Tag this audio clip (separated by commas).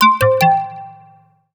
Alarm